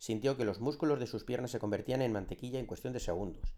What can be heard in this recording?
speech